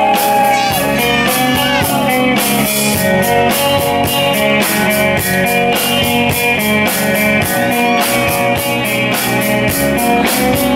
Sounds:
Speech, Music

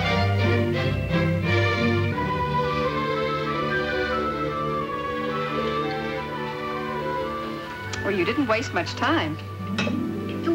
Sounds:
Music, Speech

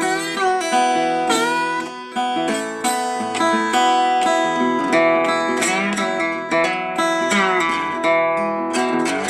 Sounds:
Music, Steel guitar

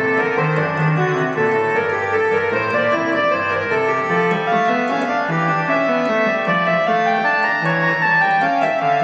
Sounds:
Keyboard (musical), Piano, Electric piano

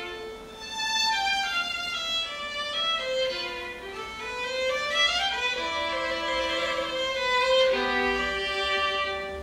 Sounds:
fiddle, Music, Musical instrument

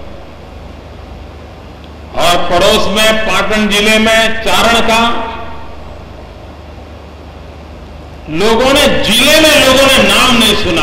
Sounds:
Speech, Male speech

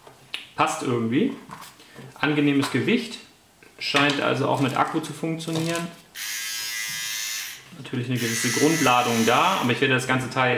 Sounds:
electric razor shaving

